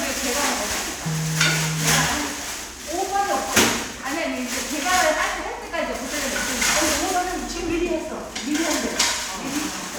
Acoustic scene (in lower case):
crowded indoor space